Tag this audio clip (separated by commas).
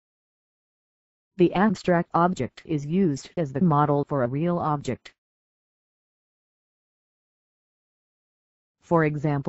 Speech